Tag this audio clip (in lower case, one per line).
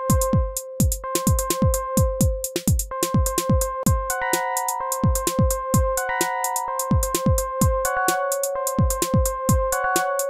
music